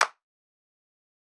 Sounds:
hands, clapping

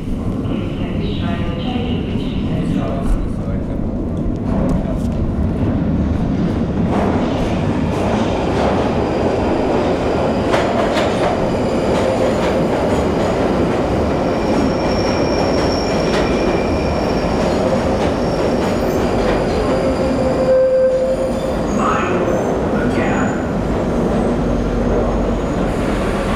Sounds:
vehicle, rail transport, metro

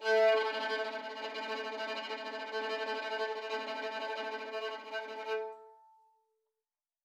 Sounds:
musical instrument, bowed string instrument, music

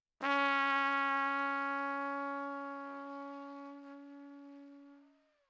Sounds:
trumpet, brass instrument, music, musical instrument

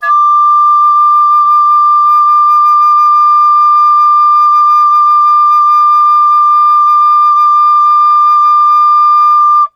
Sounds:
musical instrument, music, wind instrument

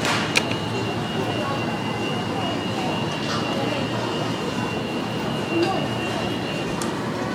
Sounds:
alarm

